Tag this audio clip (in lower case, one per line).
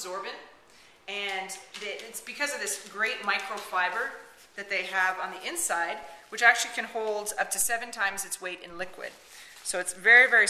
speech